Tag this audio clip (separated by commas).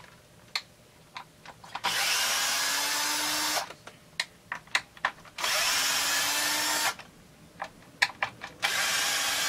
Tools, Power tool